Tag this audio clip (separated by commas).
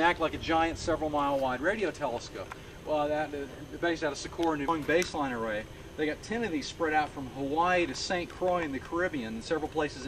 Speech